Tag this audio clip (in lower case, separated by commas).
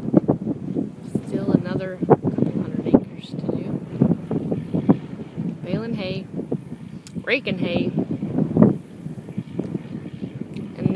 speech